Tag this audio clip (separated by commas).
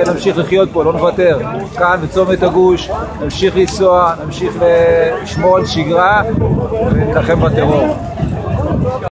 Speech